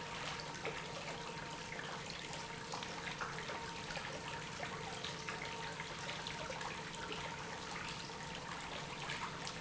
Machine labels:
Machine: pump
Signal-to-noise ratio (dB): 6 dB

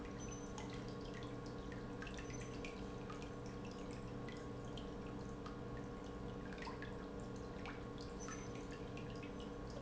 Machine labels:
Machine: pump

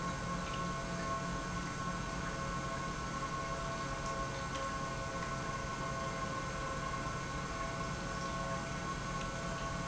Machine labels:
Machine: pump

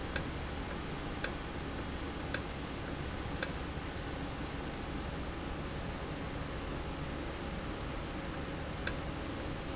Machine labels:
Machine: valve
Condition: normal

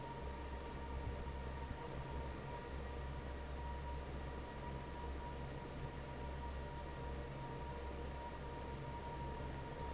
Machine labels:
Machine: fan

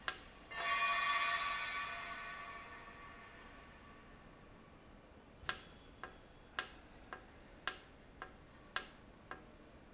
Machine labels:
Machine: valve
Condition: normal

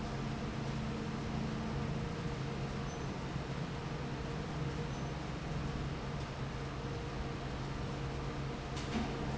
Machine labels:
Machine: fan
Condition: normal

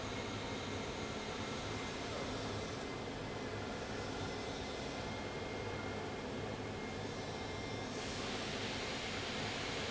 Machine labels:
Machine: fan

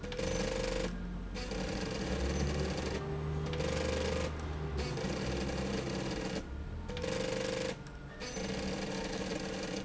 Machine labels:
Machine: slide rail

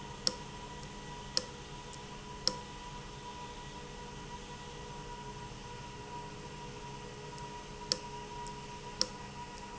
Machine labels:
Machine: valve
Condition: abnormal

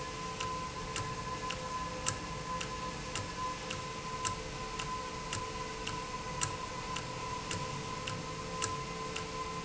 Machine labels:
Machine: valve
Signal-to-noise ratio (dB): -6 dB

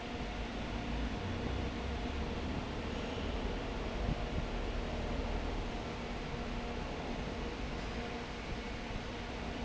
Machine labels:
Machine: fan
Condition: abnormal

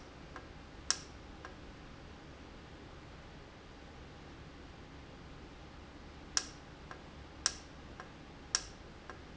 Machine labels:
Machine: valve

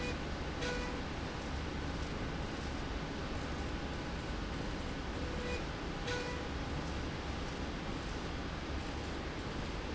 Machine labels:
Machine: slide rail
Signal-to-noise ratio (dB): -6 dB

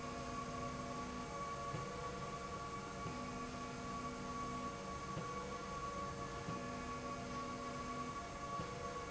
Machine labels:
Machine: slide rail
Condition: normal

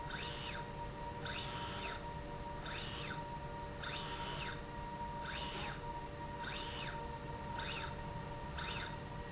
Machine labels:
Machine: slide rail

